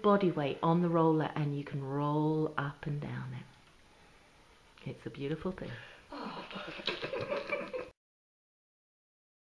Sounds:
Speech

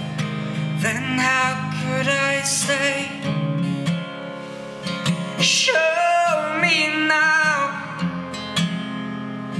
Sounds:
Music, Singing, Strum

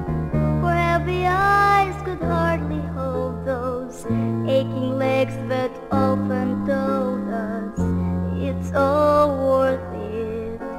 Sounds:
Music

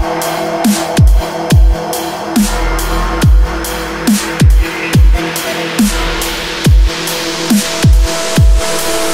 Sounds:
Dubstep, Music

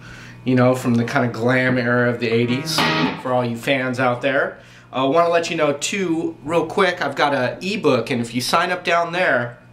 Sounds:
Music, Tapping (guitar technique), Strum, Guitar, Speech

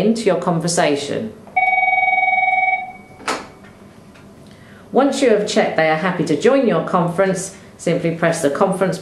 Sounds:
Telephone bell ringing, Telephone, Speech

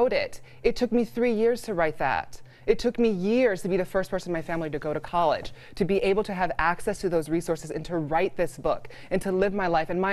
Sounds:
Speech

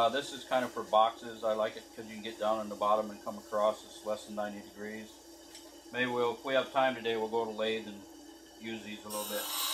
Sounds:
Speech, Tools

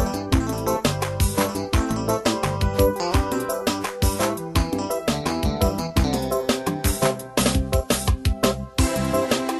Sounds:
Music, Background music

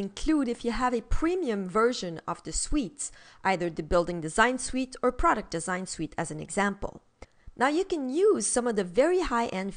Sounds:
Speech

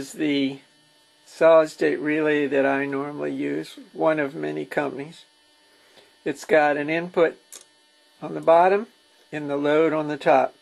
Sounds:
Speech

